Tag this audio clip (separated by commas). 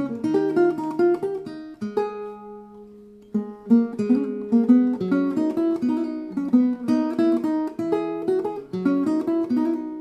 Pizzicato